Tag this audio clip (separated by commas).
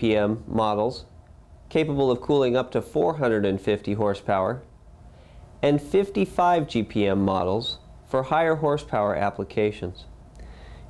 Speech